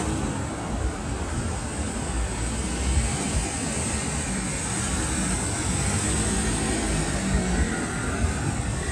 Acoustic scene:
street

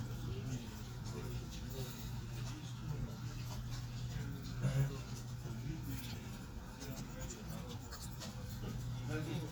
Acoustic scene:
crowded indoor space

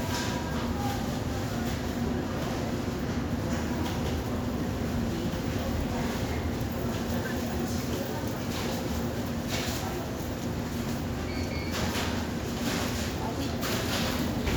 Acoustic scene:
subway station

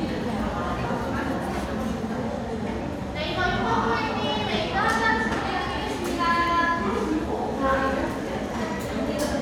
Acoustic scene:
cafe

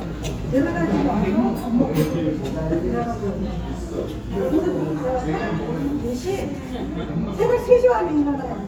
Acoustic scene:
restaurant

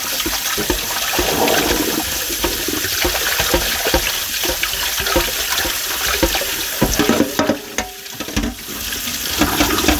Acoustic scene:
kitchen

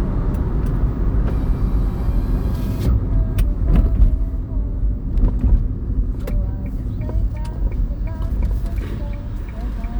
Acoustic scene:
car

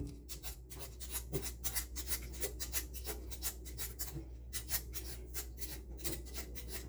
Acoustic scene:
kitchen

